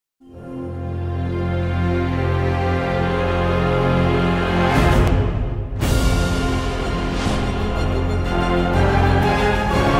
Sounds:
Theme music

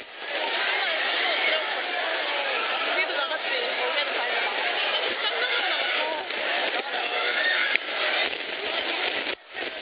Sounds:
Speech

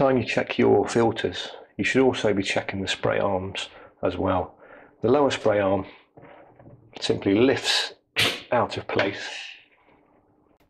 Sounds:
Speech

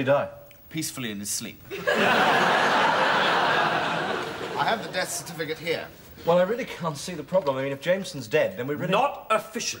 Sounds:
Speech

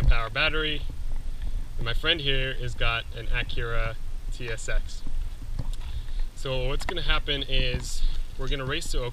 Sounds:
Speech

